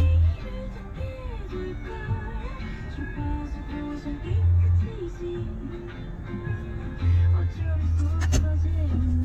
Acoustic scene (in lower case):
car